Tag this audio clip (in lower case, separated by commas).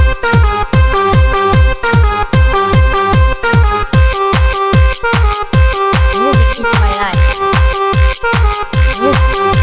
speech, music